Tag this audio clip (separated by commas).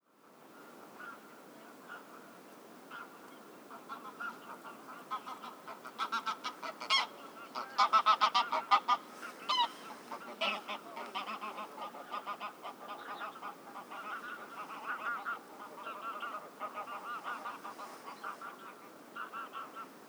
Animal, livestock, Fowl